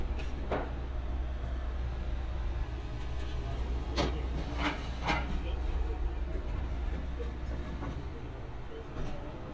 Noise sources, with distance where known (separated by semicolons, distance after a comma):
person or small group talking